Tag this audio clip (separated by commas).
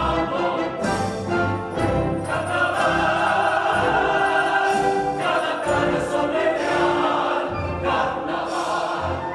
Opera, Music